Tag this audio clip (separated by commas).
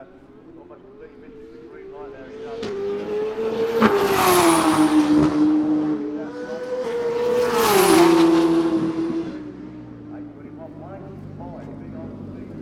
Motor vehicle (road), Motorcycle, Vehicle